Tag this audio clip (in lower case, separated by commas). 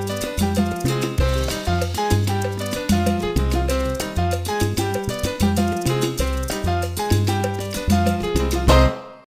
music